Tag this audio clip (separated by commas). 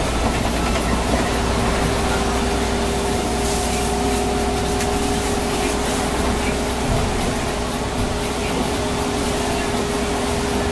Vehicle, Bus